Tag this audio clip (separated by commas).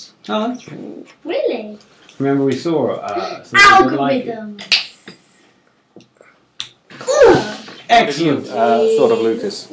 inside a small room, Speech